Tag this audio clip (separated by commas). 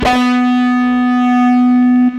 Plucked string instrument, Music, Guitar, Electric guitar, Musical instrument